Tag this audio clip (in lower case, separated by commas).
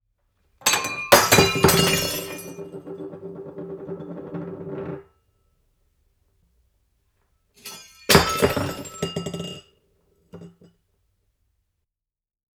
shatter, glass